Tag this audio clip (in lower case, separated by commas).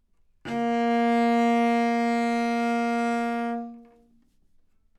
music, musical instrument, bowed string instrument